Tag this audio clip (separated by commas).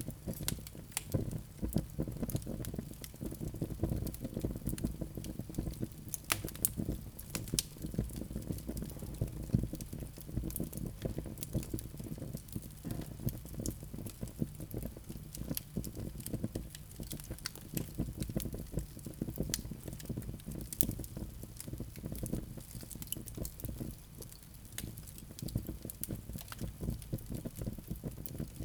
Fire